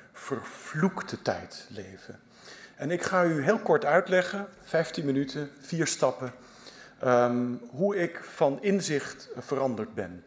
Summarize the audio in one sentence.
A man is giving a speech